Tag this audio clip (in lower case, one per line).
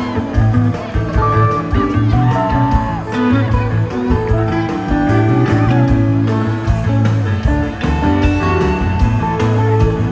music
speech